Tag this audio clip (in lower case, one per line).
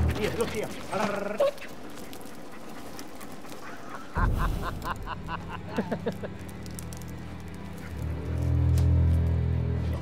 music
speech